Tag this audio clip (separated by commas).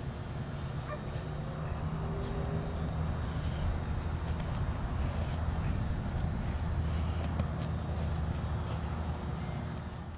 Domestic animals, Dog, Bow-wow, Animal